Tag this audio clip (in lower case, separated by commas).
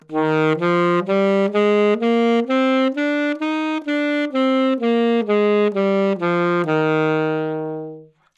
music, musical instrument, wind instrument